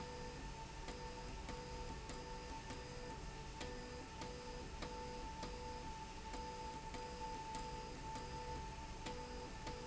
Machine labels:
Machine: slide rail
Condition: abnormal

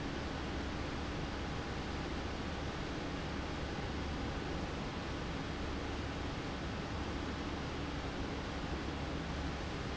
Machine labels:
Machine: fan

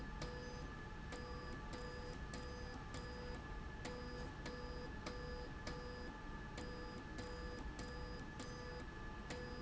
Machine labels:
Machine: slide rail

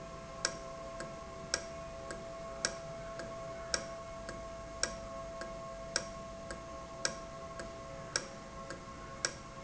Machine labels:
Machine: valve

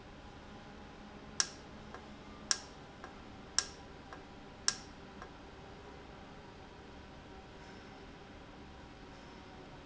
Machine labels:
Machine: valve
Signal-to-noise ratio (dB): 6 dB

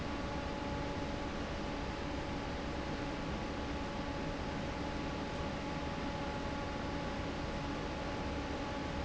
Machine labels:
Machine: fan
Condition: normal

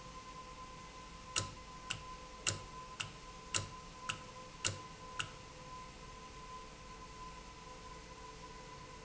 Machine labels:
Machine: valve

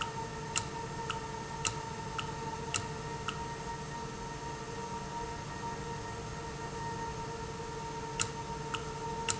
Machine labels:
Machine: valve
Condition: normal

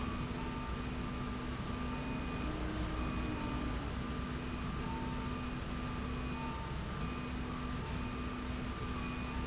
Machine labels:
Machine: slide rail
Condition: normal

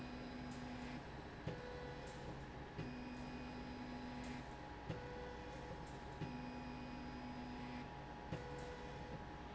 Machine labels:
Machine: slide rail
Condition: normal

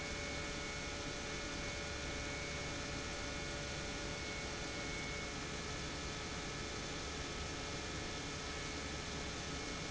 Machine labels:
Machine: pump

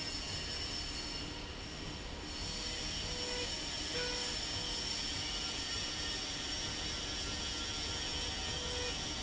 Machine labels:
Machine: slide rail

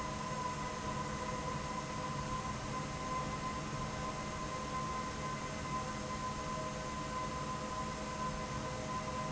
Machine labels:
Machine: fan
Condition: abnormal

